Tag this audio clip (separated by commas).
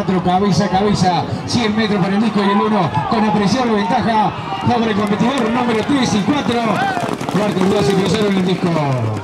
Speech